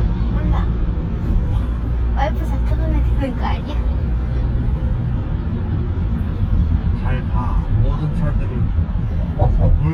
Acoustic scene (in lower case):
car